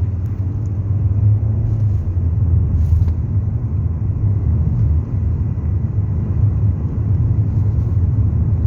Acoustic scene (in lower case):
car